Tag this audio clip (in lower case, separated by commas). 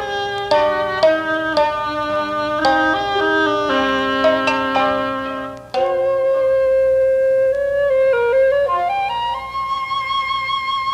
wind instrument, music